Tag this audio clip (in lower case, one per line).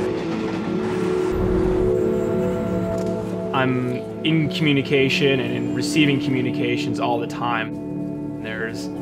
music
speech
outside, urban or man-made